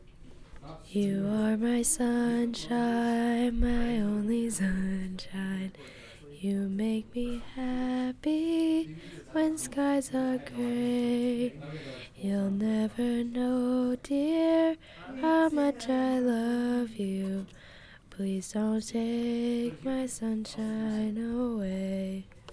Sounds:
Human voice, Singing

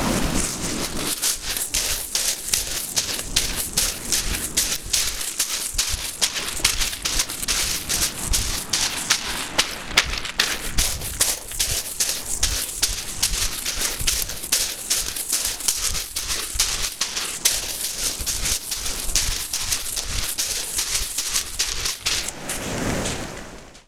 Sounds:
Run

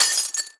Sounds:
Glass, Shatter

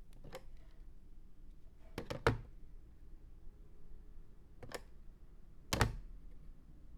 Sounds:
Telephone, Alarm

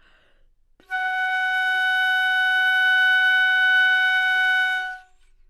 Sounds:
Musical instrument, woodwind instrument, Music

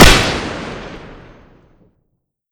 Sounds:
Gunshot, Explosion

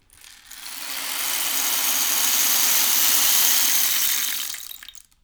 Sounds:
Music, Rattle (instrument), Musical instrument, Percussion

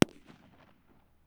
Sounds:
Explosion, Fireworks

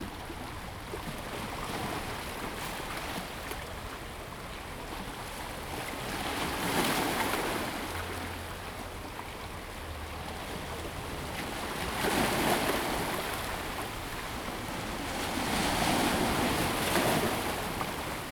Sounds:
surf, Ocean, Water

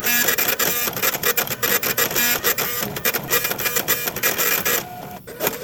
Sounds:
Mechanisms, Printer

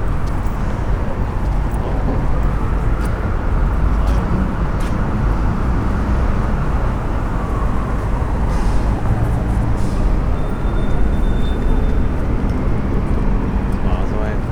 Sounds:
Motor vehicle (road), Alarm, Vehicle, Siren

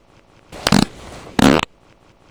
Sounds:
Fart

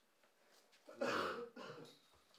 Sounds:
Cough, Respiratory sounds

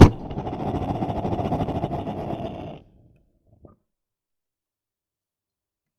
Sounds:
Fire

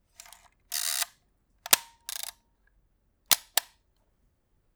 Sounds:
Mechanisms, Camera

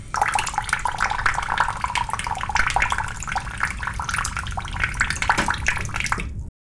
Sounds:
home sounds, faucet, Sink (filling or washing)

